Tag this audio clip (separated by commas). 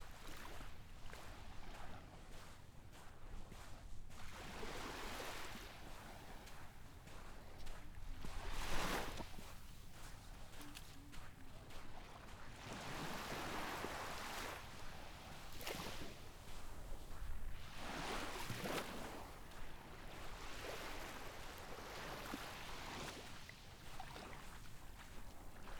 Water, surf, Ocean